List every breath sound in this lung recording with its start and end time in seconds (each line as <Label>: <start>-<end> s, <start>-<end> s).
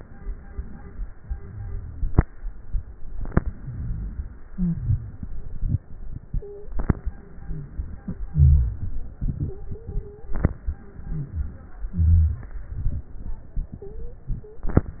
Inhalation: 2.95-4.49 s
Exhalation: 4.49-7.18 s
Wheeze: 1.37-2.17 s, 4.49-5.28 s, 8.31-8.96 s, 11.05-11.62 s, 11.90-12.60 s
Stridor: 6.37-6.72 s, 9.34-10.50 s, 13.79-14.28 s, 14.43-14.73 s
Crackles: 2.95-4.49 s